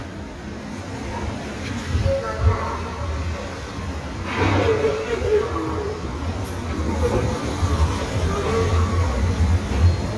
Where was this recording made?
in a subway station